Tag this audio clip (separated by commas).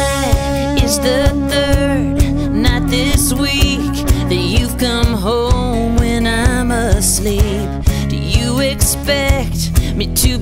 Country, Music